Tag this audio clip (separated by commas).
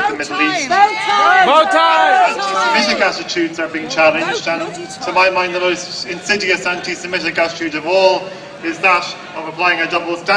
Female speech, Male speech, Speech